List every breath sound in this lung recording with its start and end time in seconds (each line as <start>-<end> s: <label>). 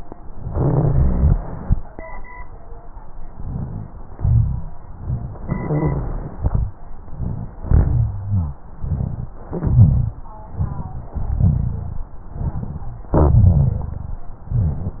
0.44-1.37 s: crackles
3.42-3.91 s: inhalation
3.42-3.91 s: rhonchi
4.16-4.76 s: exhalation
4.16-4.76 s: rhonchi
4.93-5.43 s: inhalation
4.93-5.43 s: rhonchi
5.49-6.39 s: exhalation
7.02-7.65 s: inhalation
7.02-7.65 s: rhonchi
7.67-8.54 s: exhalation
7.67-8.54 s: rhonchi
8.80-9.37 s: inhalation
8.80-9.37 s: rhonchi
9.49-10.27 s: exhalation
9.49-10.27 s: rhonchi
10.53-11.10 s: inhalation
10.53-11.10 s: rhonchi
11.21-12.14 s: exhalation
11.21-12.14 s: rhonchi
12.29-13.11 s: inhalation
12.29-13.11 s: rhonchi
13.19-14.19 s: exhalation
13.19-14.19 s: rhonchi
14.48-15.00 s: inhalation
14.48-15.00 s: rhonchi